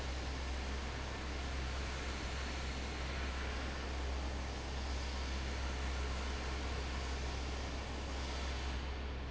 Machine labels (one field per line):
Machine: fan